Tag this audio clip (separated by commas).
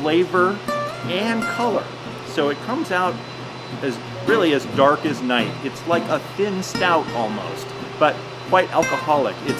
Music, Speech